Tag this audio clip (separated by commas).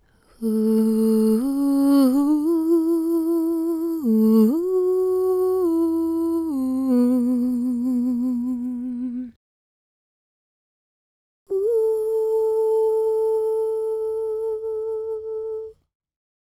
Human voice, Female singing, Singing